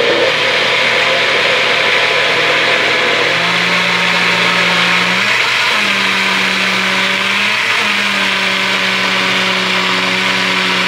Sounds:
blender

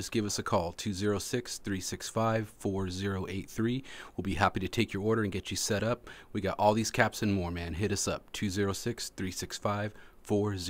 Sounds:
speech

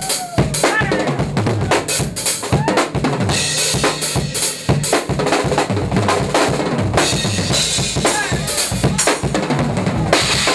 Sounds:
music, musical instrument

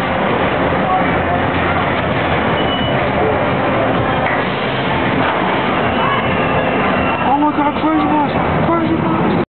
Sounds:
speech

